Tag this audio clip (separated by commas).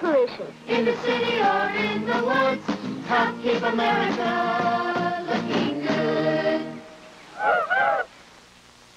Music